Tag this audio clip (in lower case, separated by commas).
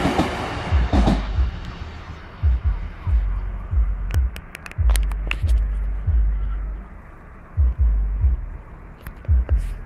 throbbing, hum